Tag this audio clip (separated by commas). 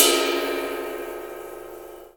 Musical instrument, Percussion, Crash cymbal, Cymbal, Music